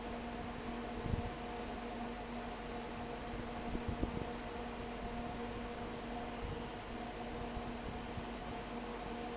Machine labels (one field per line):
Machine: fan